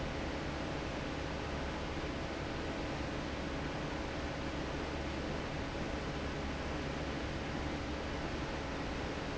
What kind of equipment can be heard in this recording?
fan